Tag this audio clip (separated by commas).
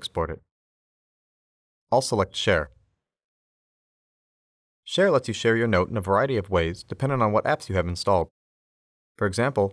Speech